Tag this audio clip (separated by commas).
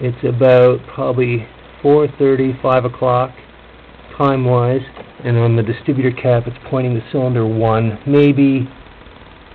Speech